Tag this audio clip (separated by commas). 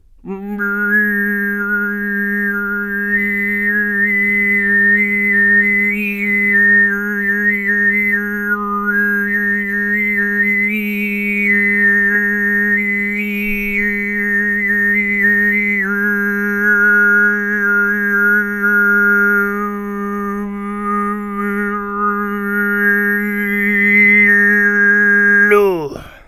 Human voice, Singing